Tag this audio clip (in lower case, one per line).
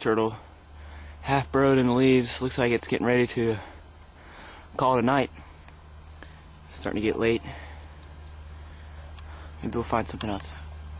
speech